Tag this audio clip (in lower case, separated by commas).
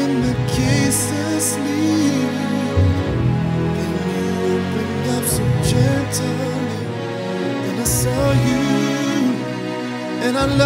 violin, musical instrument, music